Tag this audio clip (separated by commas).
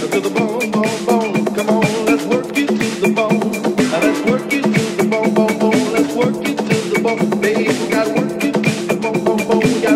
Disco, Music